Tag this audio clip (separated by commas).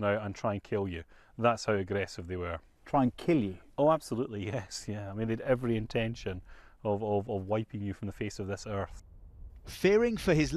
Speech